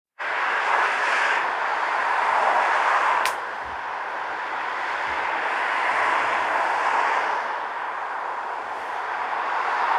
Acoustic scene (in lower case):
street